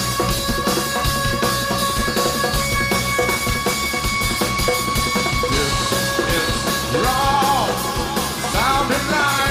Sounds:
Music

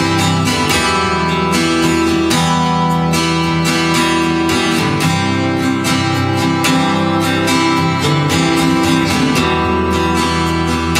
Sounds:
Music, Musical instrument, Guitar

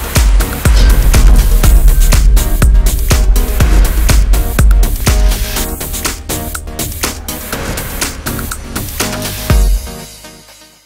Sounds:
Music

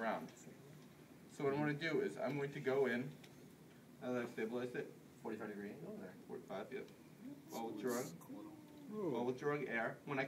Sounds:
Speech

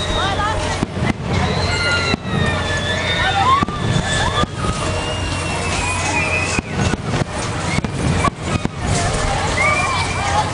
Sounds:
Speech

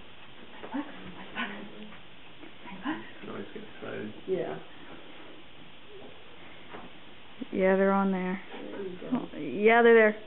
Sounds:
Speech, Animal, Dog, pets

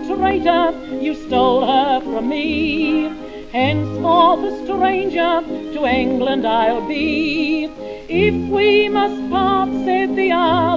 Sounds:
Music

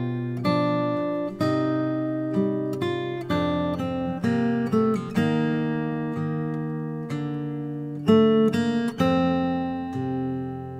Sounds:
Musical instrument, Plucked string instrument, Music, Guitar, Strum

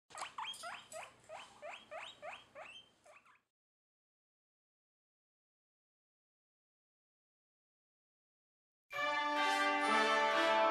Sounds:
Music, Domestic animals

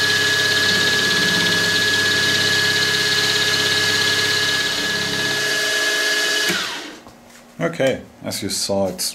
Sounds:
Tools, Speech, inside a small room

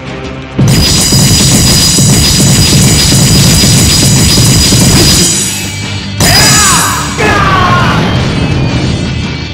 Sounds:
crash, Whack

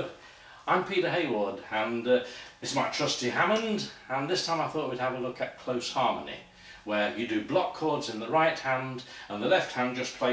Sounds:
Speech

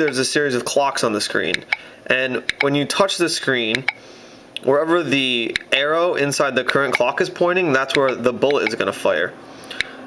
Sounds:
Speech

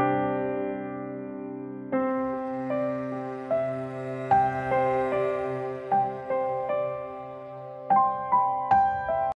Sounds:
Music

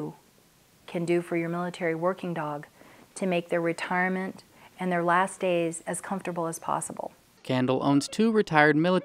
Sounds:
Speech

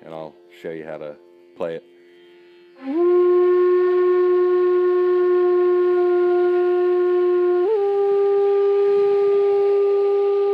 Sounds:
Flute, Wind instrument

